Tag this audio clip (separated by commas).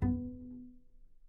Musical instrument, Music, Bowed string instrument